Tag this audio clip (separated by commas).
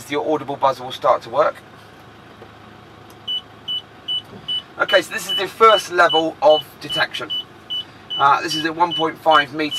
reversing beeps